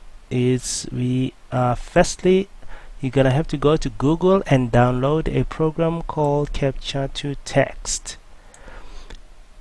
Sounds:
Speech

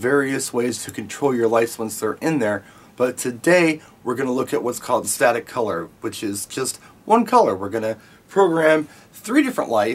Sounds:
Speech

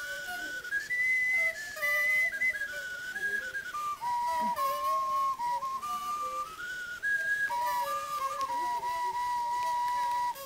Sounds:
inside a small room, Music, Flute

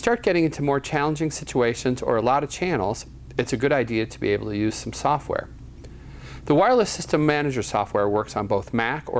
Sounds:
Speech

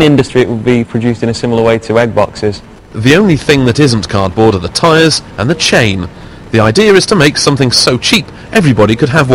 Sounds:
Speech

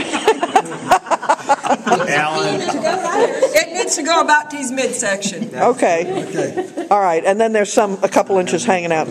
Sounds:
Speech

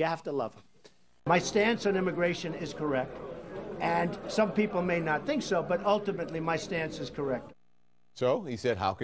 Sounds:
Speech, Male speech, Narration

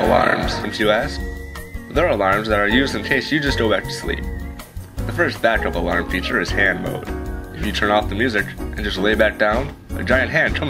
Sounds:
Speech, Music

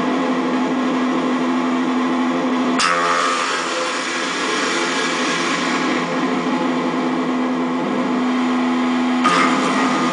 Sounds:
Reverberation

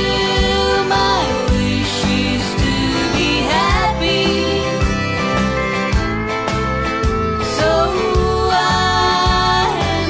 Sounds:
Female singing, Music

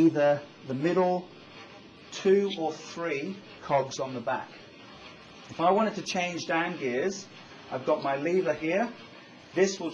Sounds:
Vehicle, Speech

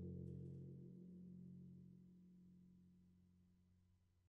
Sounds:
playing tympani

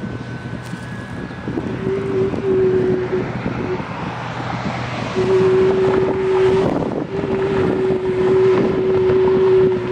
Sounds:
Wind noise (microphone)

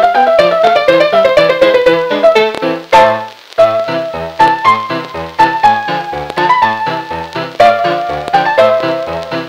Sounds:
Keyboard (musical)

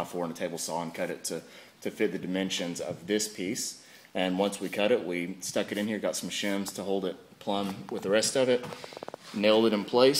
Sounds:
Speech

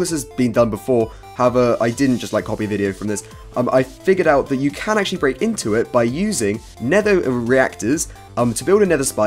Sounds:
Speech, Music

